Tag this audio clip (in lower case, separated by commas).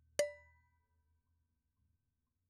domestic sounds, dishes, pots and pans